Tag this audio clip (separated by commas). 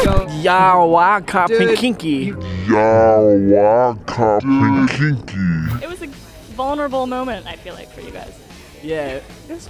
Music, Pop music, inside a large room or hall, Speech